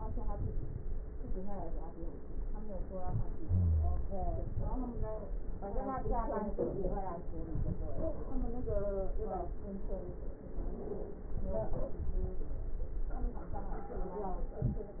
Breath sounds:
Wheeze: 3.38-4.01 s

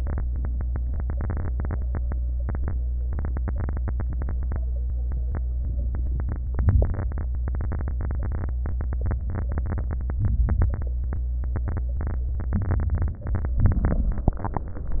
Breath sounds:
Inhalation: 6.51-7.43 s, 12.43-13.30 s
Exhalation: 13.33-14.97 s
Crackles: 6.51-7.43 s

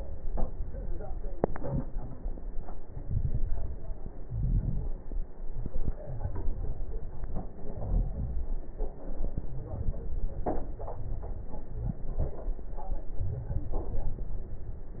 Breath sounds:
Inhalation: 2.79-3.93 s
Exhalation: 4.26-5.04 s
Crackles: 2.79-3.93 s, 4.26-5.04 s

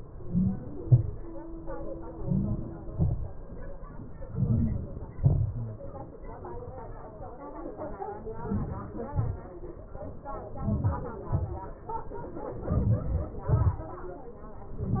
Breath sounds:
Inhalation: 0.16-0.70 s, 2.21-2.74 s, 4.30-4.97 s, 8.44-8.96 s, 10.68-11.09 s, 12.79-13.30 s
Exhalation: 0.82-1.23 s, 2.95-3.38 s, 5.17-5.68 s, 9.18-9.51 s, 11.37-11.71 s, 13.48-13.86 s

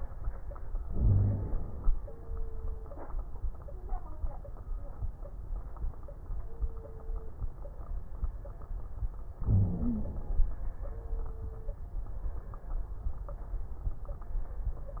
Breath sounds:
Inhalation: 0.79-1.87 s, 9.45-10.43 s
Wheeze: 0.92-1.45 s, 9.45-10.09 s

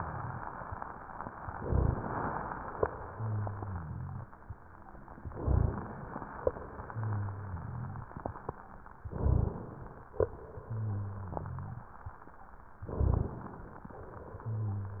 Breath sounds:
Inhalation: 1.63-2.75 s, 5.26-6.45 s, 8.97-10.12 s, 12.83-13.91 s
Exhalation: 3.15-5.16 s, 6.83-8.92 s, 10.30-12.11 s, 14.00-15.00 s
Rhonchi: 3.05-4.30 s, 6.85-8.09 s, 10.64-11.89 s, 14.36-15.00 s
Crackles: 1.63-1.99 s, 5.38-5.80 s, 9.12-9.54 s, 12.91-13.34 s

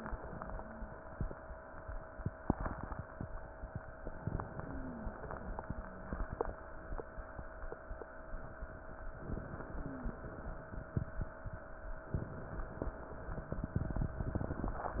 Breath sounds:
Wheeze: 4.56-5.18 s, 5.71-6.25 s, 9.66-10.28 s

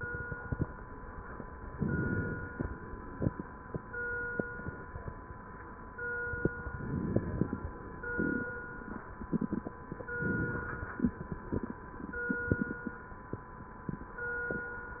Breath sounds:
Inhalation: 1.71-2.62 s, 6.70-7.61 s, 10.23-11.14 s

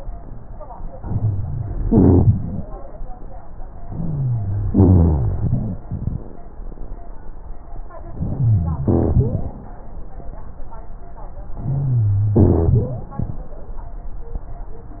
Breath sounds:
Inhalation: 1.01-1.84 s, 3.85-4.67 s, 8.18-8.84 s, 11.63-12.35 s
Exhalation: 1.84-2.68 s, 4.69-5.81 s, 8.86-9.64 s, 12.37-13.09 s
Wheeze: 3.85-4.67 s, 8.18-8.84 s, 11.63-12.35 s
Rhonchi: 1.84-2.68 s, 4.69-5.81 s, 8.86-9.64 s, 12.37-13.09 s

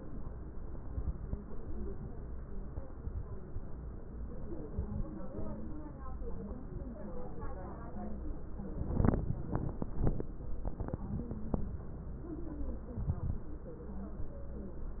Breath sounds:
Inhalation: 12.95-13.47 s
Crackles: 12.95-13.47 s

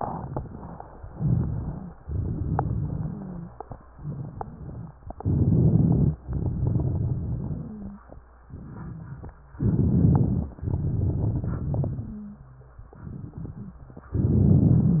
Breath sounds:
Inhalation: 1.02-1.90 s, 5.22-6.17 s, 9.60-10.55 s, 14.21-15.00 s
Exhalation: 1.99-3.43 s, 6.22-7.92 s, 10.59-12.29 s
Crackles: 1.02-1.90 s, 1.99-3.43 s, 5.22-6.17 s, 6.22-7.92 s, 9.60-10.55 s, 10.59-12.29 s, 14.21-15.00 s

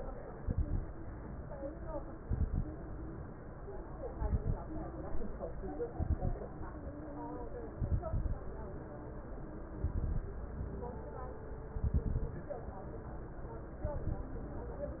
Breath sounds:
Exhalation: 0.34-0.87 s, 2.18-2.71 s, 4.10-4.58 s, 5.91-6.38 s, 7.81-8.40 s, 9.82-10.30 s, 11.76-12.39 s, 13.85-14.35 s
Crackles: 0.34-0.87 s, 2.18-2.71 s, 4.10-4.58 s, 5.91-6.38 s, 7.81-8.40 s, 9.82-10.30 s, 11.76-12.39 s, 13.85-14.35 s

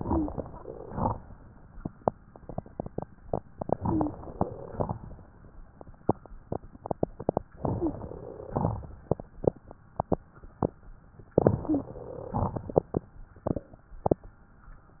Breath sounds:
Inhalation: 3.81-4.42 s, 7.57-8.08 s, 11.42-12.26 s
Exhalation: 0.40-1.14 s, 4.48-5.22 s, 8.18-8.82 s, 12.30-12.96 s
Wheeze: 0.00-0.32 s, 3.81-4.18 s, 7.72-7.99 s, 11.61-11.95 s
Crackles: 0.40-1.14 s, 4.48-5.22 s, 8.48-8.82 s, 12.30-12.96 s

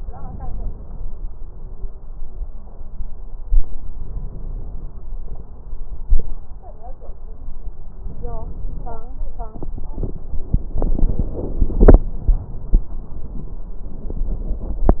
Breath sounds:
Inhalation: 3.91-5.11 s, 7.96-9.09 s

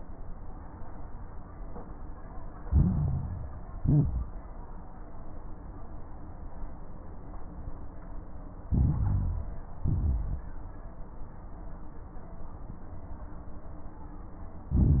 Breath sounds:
Inhalation: 2.62-3.68 s, 8.66-9.67 s, 14.71-15.00 s
Exhalation: 3.76-4.38 s, 9.82-10.44 s
Crackles: 2.62-3.68 s, 3.76-4.38 s, 8.66-9.67 s, 9.82-10.44 s, 14.71-15.00 s

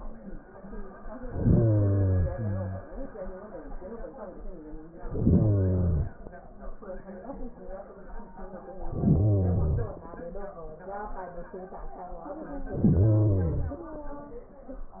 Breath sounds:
Inhalation: 1.11-2.85 s, 5.05-6.18 s, 8.73-10.10 s, 12.63-13.99 s

